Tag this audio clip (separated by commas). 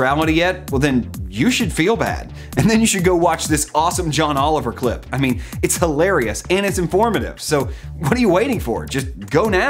Speech, Music